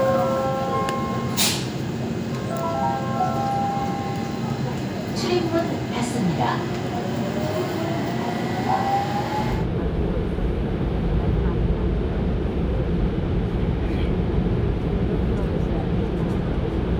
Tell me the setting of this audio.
subway train